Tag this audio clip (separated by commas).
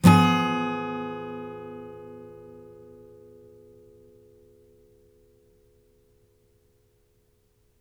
Musical instrument, Guitar, Music, Acoustic guitar, Strum, Plucked string instrument